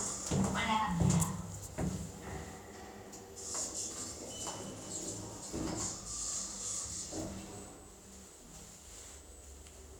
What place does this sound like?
elevator